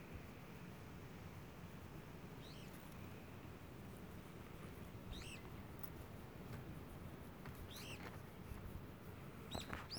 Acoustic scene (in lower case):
park